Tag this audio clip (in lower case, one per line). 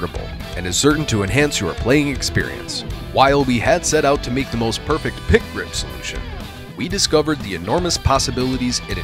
music
plucked string instrument
musical instrument
speech
guitar